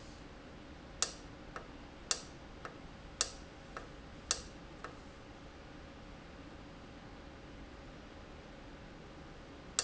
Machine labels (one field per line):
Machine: valve